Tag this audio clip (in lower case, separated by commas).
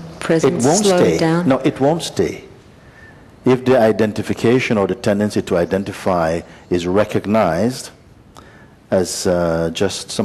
speech